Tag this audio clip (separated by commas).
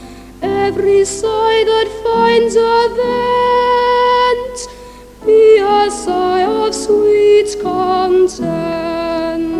Music, Singing